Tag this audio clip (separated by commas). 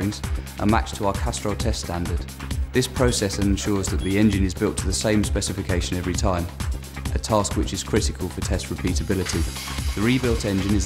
Music, Speech